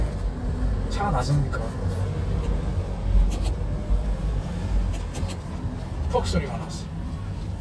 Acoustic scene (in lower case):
car